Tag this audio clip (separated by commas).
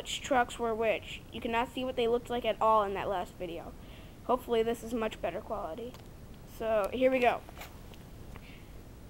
Speech